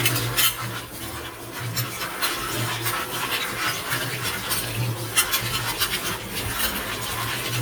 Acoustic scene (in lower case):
kitchen